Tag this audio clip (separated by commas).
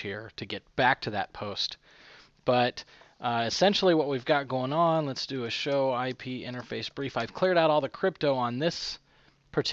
Speech